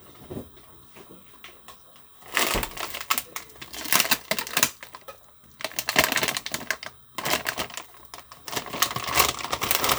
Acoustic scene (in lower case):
kitchen